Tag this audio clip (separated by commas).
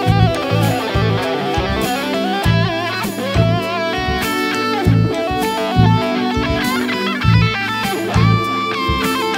Rock music, Drum, Musical instrument, Percussion, Music, Bass guitar, Guitar, Plucked string instrument, Electric guitar